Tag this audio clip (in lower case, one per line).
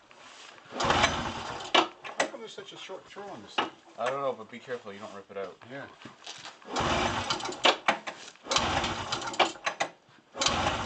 inside a large room or hall
speech